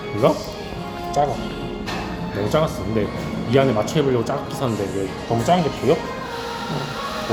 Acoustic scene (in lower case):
cafe